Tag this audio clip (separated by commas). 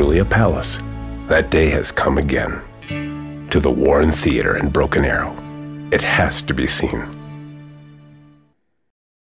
Speech, Music